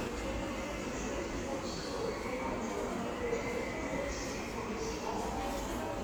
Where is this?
in a subway station